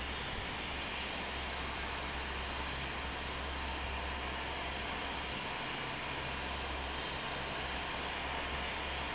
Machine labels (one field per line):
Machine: fan